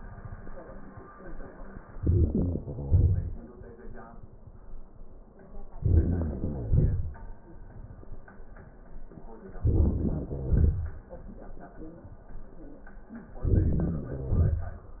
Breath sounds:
1.95-2.59 s: inhalation
1.95-2.59 s: crackles
2.59-3.51 s: exhalation
2.59-3.51 s: crackles
5.72-6.36 s: crackles
5.75-6.40 s: inhalation
6.39-7.44 s: crackles
6.41-7.46 s: exhalation
9.58-10.29 s: crackles
9.60-10.29 s: inhalation
10.30-11.00 s: crackles
10.30-11.65 s: exhalation
13.36-13.98 s: crackles
13.36-13.99 s: inhalation
14.00-15.00 s: exhalation
14.00-15.00 s: crackles

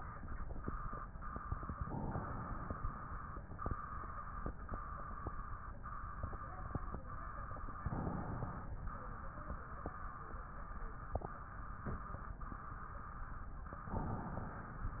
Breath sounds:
1.84-3.44 s: inhalation
7.75-8.86 s: inhalation
13.85-14.96 s: inhalation

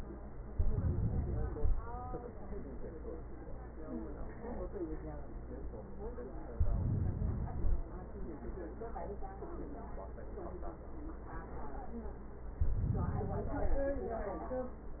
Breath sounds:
0.48-1.52 s: inhalation
1.50-2.54 s: exhalation
6.53-7.96 s: inhalation
12.63-13.81 s: inhalation
13.75-14.92 s: exhalation

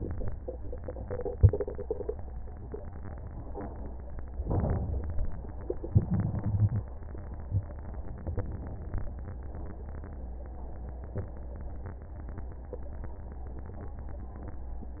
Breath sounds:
4.42-5.33 s: inhalation
5.93-6.84 s: exhalation

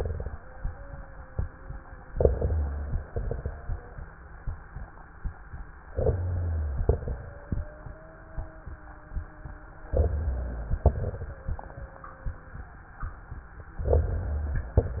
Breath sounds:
0.30-2.07 s: wheeze
2.09-3.04 s: inhalation
2.09-3.04 s: crackles
3.07-3.61 s: exhalation
3.07-3.61 s: crackles
3.51-4.04 s: wheeze
5.92-6.81 s: inhalation
5.92-6.81 s: crackles
6.85-7.38 s: exhalation
6.85-7.38 s: crackles
7.12-9.83 s: wheeze
9.92-10.82 s: inhalation
9.92-10.82 s: crackles
10.85-11.39 s: exhalation
10.85-11.39 s: crackles
11.29-12.79 s: wheeze
13.77-14.76 s: inhalation
13.77-14.76 s: crackles

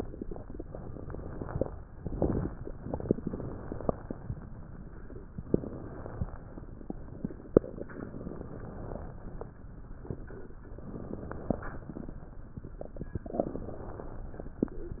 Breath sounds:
0.58-1.79 s: inhalation
2.87-4.20 s: inhalation
5.51-6.63 s: inhalation
7.98-9.45 s: inhalation
10.92-12.18 s: inhalation
13.39-14.72 s: inhalation

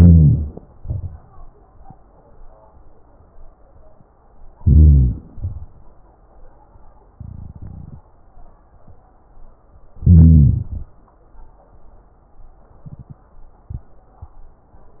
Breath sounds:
0.00-0.48 s: wheeze
0.00-0.63 s: inhalation
0.80-1.26 s: exhalation
4.56-5.20 s: inhalation
4.56-5.20 s: wheeze
5.30-5.83 s: exhalation
10.08-10.70 s: inhalation
10.08-10.70 s: wheeze

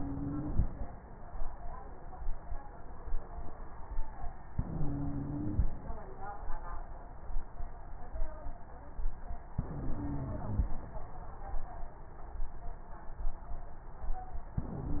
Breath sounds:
0.00-0.64 s: inhalation
0.00-0.64 s: stridor
4.52-5.68 s: inhalation
4.52-5.68 s: stridor
9.58-10.73 s: inhalation
9.58-10.73 s: stridor
14.61-15.00 s: inhalation
14.61-15.00 s: stridor

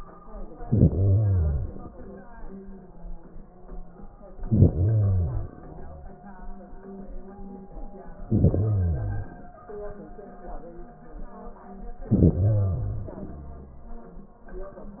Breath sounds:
0.52-2.02 s: inhalation
4.33-5.72 s: inhalation
8.22-9.61 s: inhalation
12.03-14.06 s: inhalation

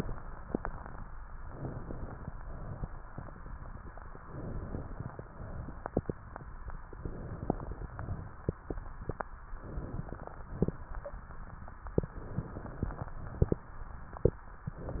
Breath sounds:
1.41-2.30 s: inhalation
2.30-3.11 s: exhalation
4.24-5.17 s: inhalation
5.17-6.09 s: exhalation
6.94-7.87 s: inhalation
7.87-8.56 s: exhalation
9.59-10.46 s: inhalation
10.46-11.16 s: exhalation
12.11-13.10 s: inhalation
13.10-13.71 s: exhalation
14.73-15.00 s: inhalation

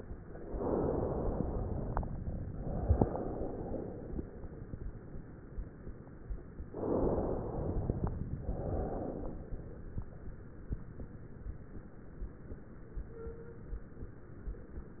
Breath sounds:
0.34-1.93 s: inhalation
2.57-4.16 s: exhalation
6.61-8.20 s: inhalation
8.40-9.41 s: exhalation

